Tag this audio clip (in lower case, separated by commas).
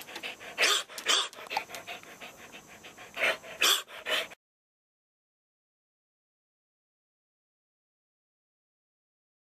whimper (dog), animal, dog, yip, pets